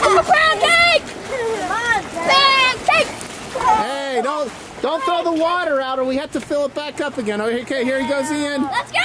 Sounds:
Speech

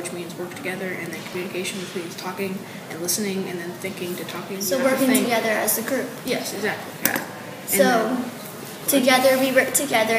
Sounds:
Speech

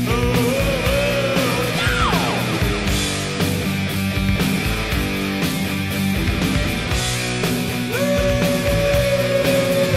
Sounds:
Music

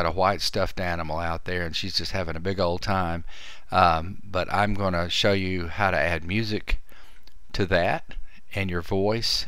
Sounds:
Speech

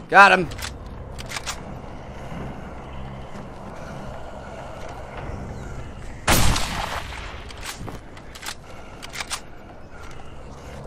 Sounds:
Fusillade, Speech

